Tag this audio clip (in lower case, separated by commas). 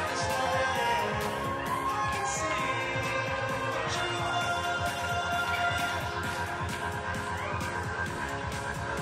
musical instrument, music, fiddle